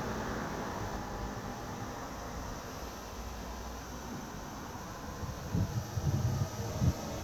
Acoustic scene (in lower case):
street